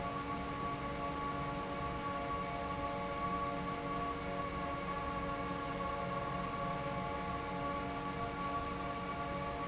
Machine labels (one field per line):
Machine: fan